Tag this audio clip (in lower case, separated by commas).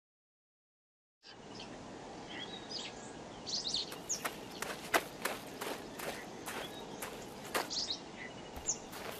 chirp, outside, rural or natural